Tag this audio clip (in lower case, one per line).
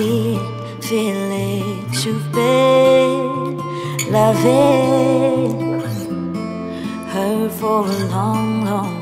music